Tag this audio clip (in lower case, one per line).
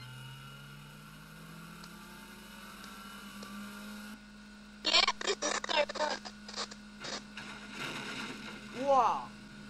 vehicle
car
motor vehicle (road)
speech